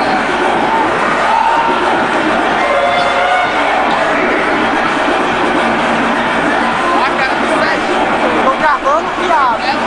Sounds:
Speech, Music

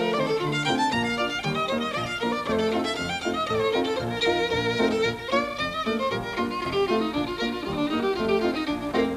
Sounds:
Violin, Music, Musical instrument

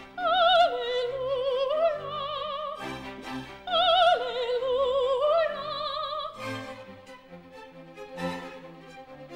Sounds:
Female singing, Music, Opera

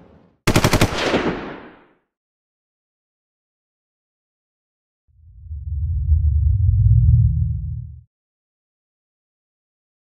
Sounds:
Machine gun, gunfire

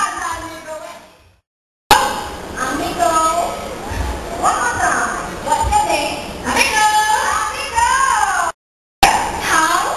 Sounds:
Speech

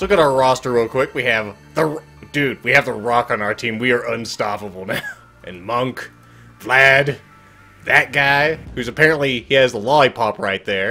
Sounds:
Music, Speech

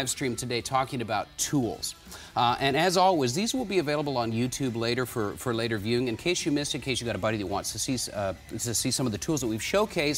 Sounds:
Speech

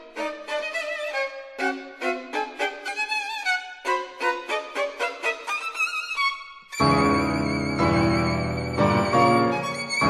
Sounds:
Music, Violin, Musical instrument

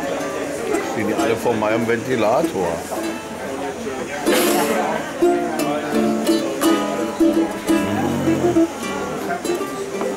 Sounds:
playing ukulele

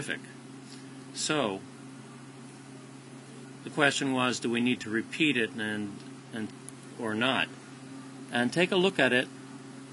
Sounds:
Speech

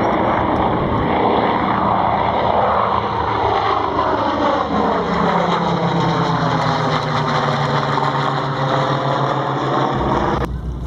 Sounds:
airplane flyby

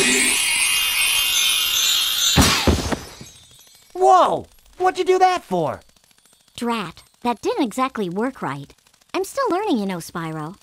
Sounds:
inside a large room or hall, Speech

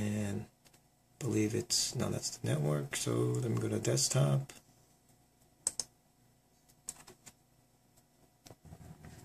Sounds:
Speech

